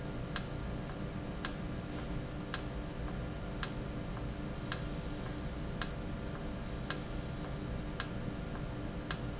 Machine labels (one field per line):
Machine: valve